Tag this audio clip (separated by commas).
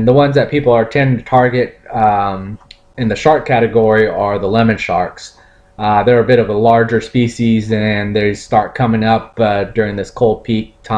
Speech